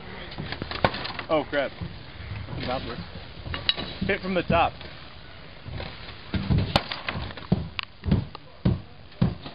A man talking and smashing wood